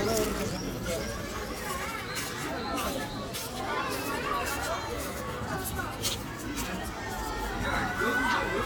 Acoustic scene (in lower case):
park